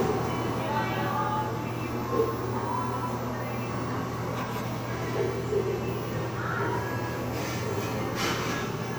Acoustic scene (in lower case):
cafe